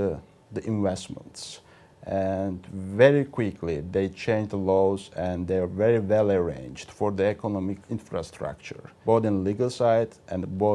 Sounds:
speech

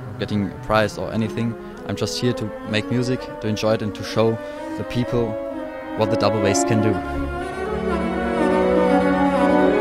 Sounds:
double bass, musical instrument, orchestra, music, cello, violin, speech, classical music, bowed string instrument

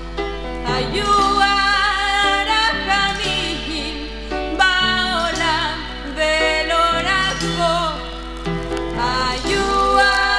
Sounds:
music, singing

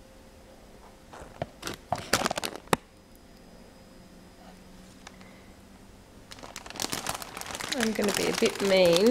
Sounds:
speech

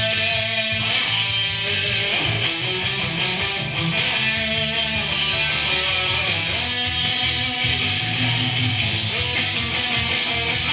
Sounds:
music

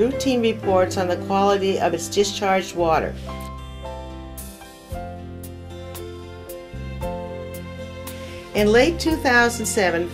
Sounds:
speech, music

